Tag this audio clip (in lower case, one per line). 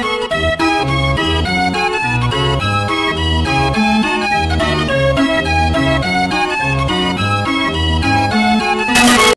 music